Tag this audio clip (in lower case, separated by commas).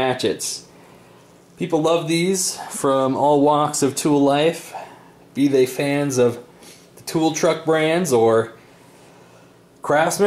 speech